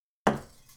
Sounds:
thud

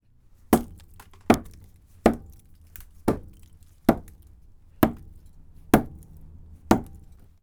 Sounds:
Hammer, Tools

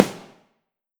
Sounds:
Musical instrument, Music, Snare drum, Percussion, Drum

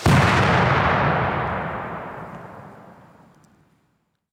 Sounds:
Explosion

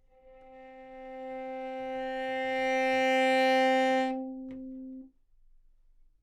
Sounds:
Music, Musical instrument, Bowed string instrument

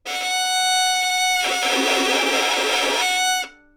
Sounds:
Music, Musical instrument, Bowed string instrument

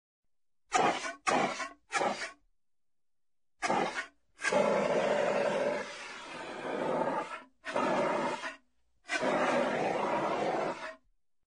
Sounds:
Fire

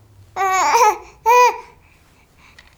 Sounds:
Speech, Human voice

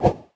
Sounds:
Whoosh

